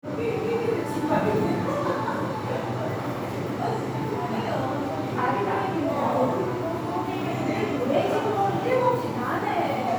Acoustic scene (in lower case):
crowded indoor space